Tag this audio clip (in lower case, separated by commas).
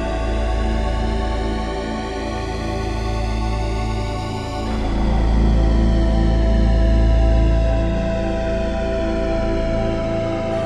music, sampler